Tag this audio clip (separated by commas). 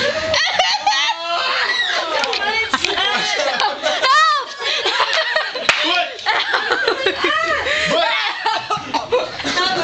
Speech